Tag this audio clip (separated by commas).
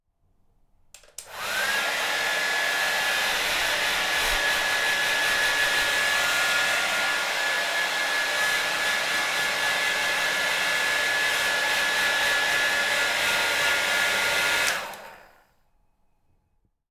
home sounds